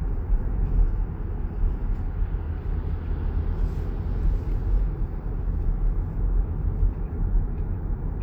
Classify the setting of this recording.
car